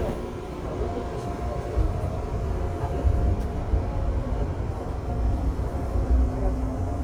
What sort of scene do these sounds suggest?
subway train